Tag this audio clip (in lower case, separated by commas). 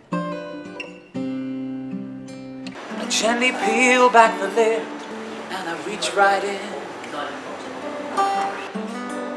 speech, music